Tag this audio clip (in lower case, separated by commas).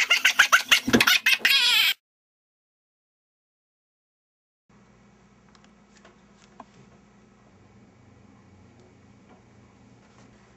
silence, inside a small room